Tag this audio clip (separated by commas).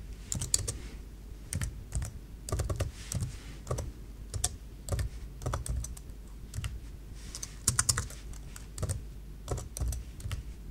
typing on computer keyboard